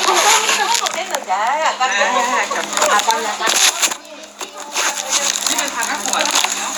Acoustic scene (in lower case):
crowded indoor space